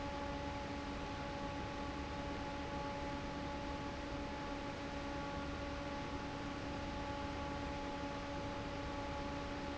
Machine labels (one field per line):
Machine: fan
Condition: normal